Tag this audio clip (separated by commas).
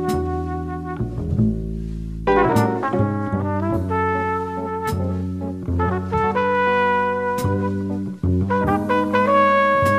Music